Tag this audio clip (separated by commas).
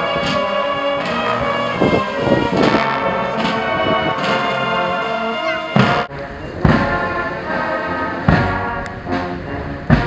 Music, outside, urban or man-made